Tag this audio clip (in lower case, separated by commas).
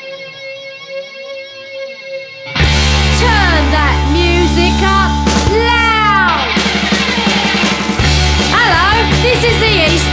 rock and roll, heavy metal, music, progressive rock, exciting music, punk rock